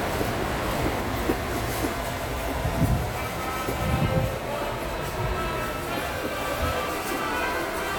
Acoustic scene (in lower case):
subway station